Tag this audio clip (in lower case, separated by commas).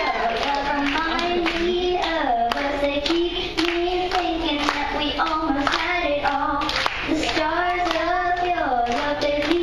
child singing